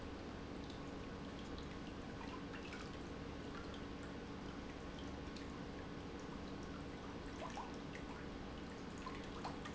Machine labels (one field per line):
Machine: pump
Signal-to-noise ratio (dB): 6 dB